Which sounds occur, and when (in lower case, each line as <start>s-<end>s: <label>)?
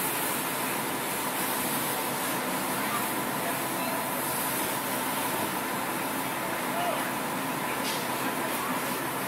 0.0s-9.2s: gush
0.0s-9.2s: motor vehicle (road)
0.0s-9.2s: steam
0.0s-9.2s: wind
2.8s-3.2s: male speech
3.3s-4.0s: male speech
6.7s-7.0s: male speech
7.8s-8.0s: generic impact sounds
8.2s-9.0s: male speech